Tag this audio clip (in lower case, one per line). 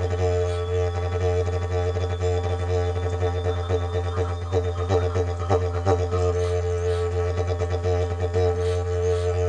playing didgeridoo